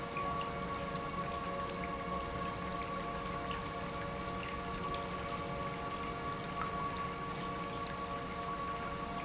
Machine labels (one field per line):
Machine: pump